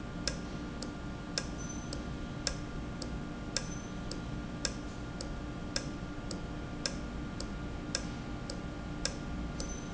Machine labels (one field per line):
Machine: valve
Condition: normal